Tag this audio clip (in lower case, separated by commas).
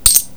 home sounds, coin (dropping)